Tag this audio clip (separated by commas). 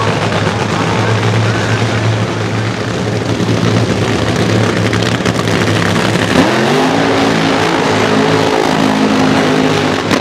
Vehicle, Car, Motor vehicle (road)